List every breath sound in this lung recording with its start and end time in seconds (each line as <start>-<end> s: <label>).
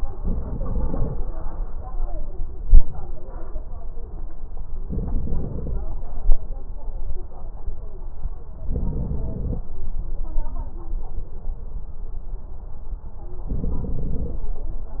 0.17-1.18 s: inhalation
0.17-1.18 s: crackles
4.84-5.86 s: inhalation
4.84-5.86 s: crackles
8.63-9.65 s: inhalation
8.63-9.65 s: crackles
13.52-14.54 s: inhalation
13.52-14.54 s: crackles